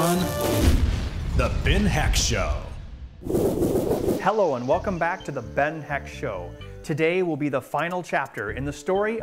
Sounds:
music
speech

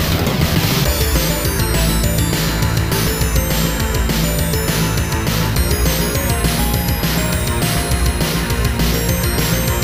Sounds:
music
dance music

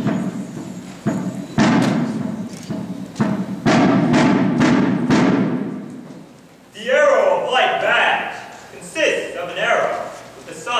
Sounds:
speech
music
thud

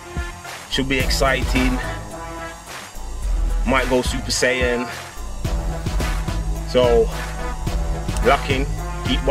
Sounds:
music
speech

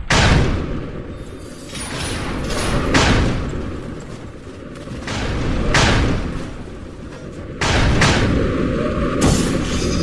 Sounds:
gunfire

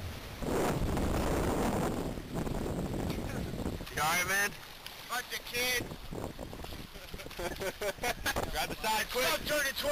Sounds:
speech

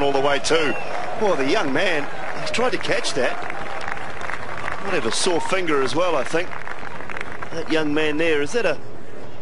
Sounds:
speech

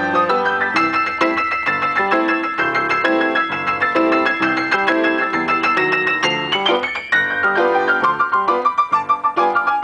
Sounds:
music

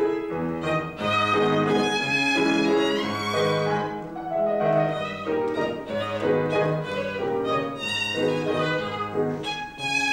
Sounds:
musical instrument
violin
music

